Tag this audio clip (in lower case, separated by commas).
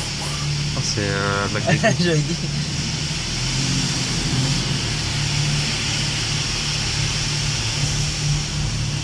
speech